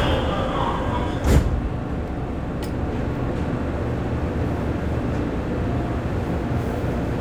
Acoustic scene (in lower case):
subway train